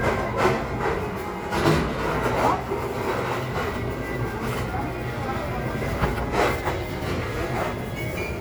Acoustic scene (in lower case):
crowded indoor space